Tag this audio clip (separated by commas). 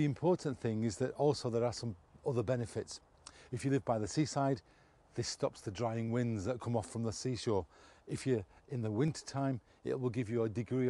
Speech